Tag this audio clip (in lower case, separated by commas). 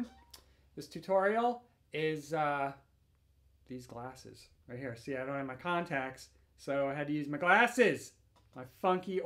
speech